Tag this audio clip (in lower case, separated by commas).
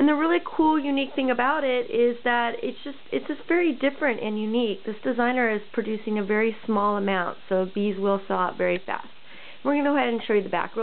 speech